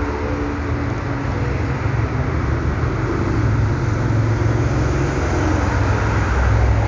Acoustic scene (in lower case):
street